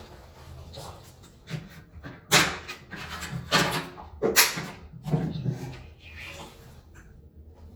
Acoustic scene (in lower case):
restroom